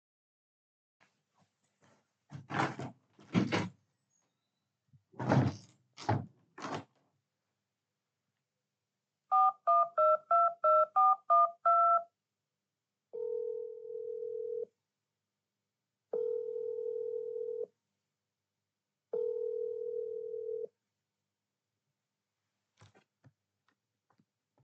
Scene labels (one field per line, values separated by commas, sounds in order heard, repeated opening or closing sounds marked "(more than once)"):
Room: bedroom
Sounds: window (more than once), phone ringing